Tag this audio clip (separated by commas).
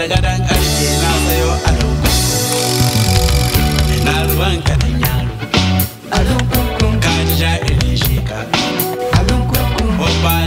Music